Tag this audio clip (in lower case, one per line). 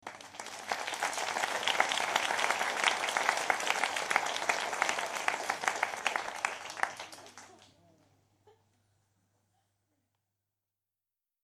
human group actions
applause